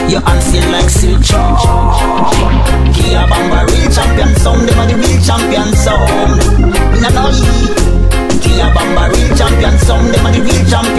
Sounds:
music
sound effect

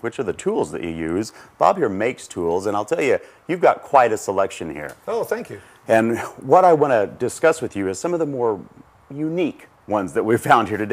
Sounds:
speech

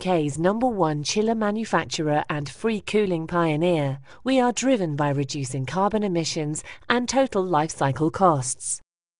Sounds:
speech

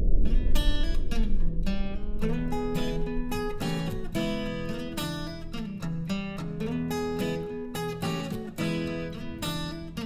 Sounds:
music

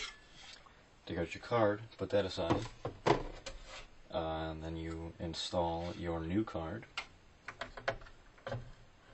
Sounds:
speech

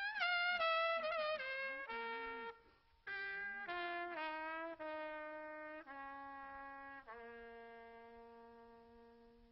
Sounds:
music

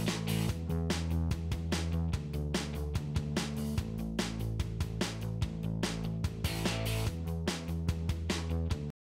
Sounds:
music

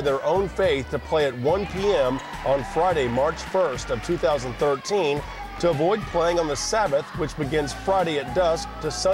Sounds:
music
speech

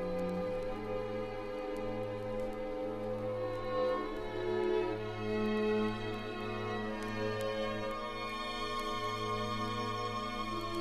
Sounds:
violin
musical instrument
music

